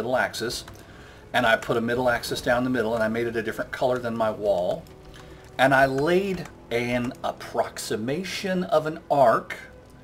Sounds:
Speech, Music

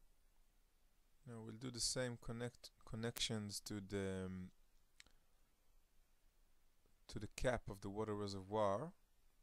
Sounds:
Speech

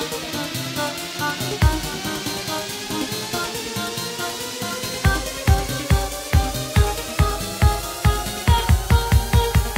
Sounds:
Music

